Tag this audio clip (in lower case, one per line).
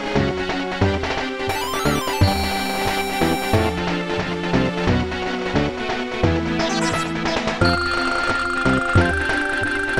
music